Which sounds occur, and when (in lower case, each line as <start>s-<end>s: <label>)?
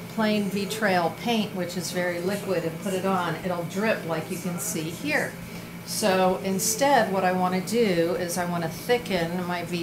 0.0s-9.8s: mechanisms
0.1s-5.4s: female speech
5.4s-5.8s: breathing
5.8s-9.8s: female speech